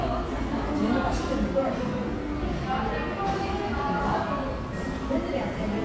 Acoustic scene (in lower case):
cafe